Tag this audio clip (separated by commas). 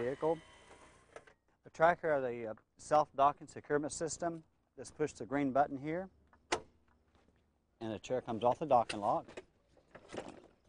Speech